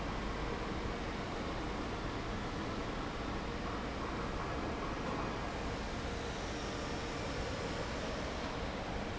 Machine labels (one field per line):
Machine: fan